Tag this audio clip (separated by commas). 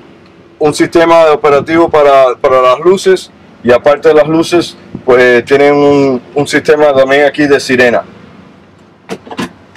Speech